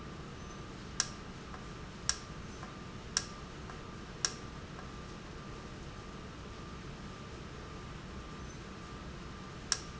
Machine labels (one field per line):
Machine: valve